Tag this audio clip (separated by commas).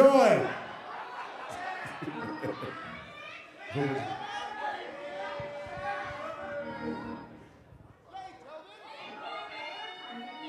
Music, Speech